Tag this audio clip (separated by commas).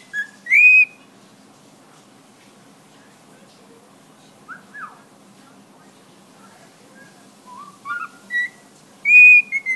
Whistle